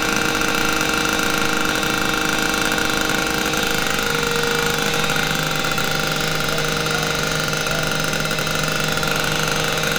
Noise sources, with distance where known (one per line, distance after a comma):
rock drill, near